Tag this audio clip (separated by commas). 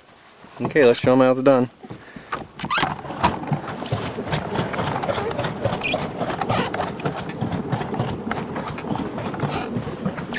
Water vehicle, Speech, Vehicle